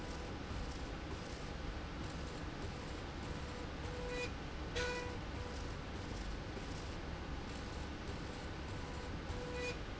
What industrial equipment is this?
slide rail